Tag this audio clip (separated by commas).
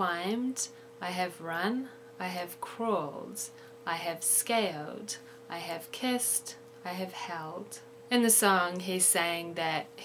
Speech